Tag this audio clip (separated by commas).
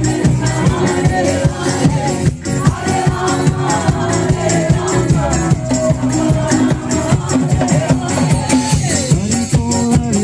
Music